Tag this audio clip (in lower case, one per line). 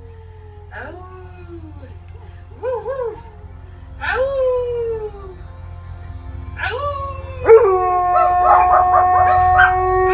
bow-wow